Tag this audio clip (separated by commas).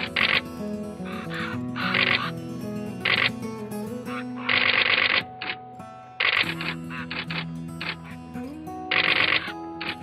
Music, Bird